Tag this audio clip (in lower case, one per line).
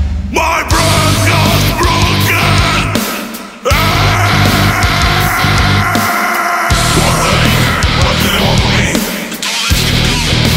angry music
music
heavy metal